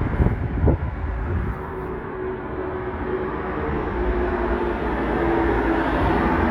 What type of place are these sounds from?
street